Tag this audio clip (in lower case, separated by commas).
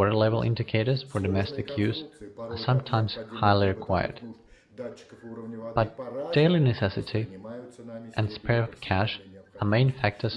speech